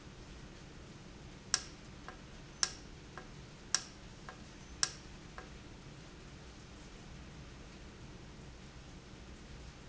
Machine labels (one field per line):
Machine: valve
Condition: normal